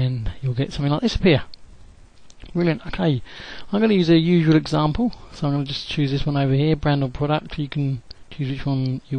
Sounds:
Speech

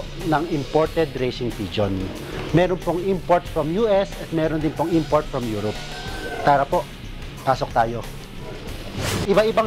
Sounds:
Music, Speech

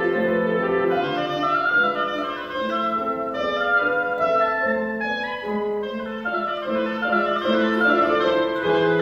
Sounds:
playing oboe

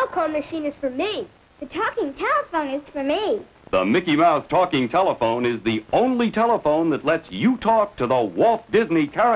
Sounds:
Speech

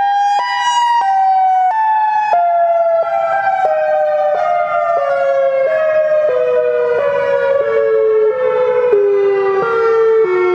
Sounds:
Siren

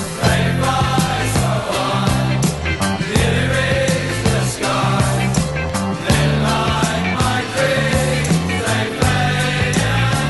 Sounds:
Music

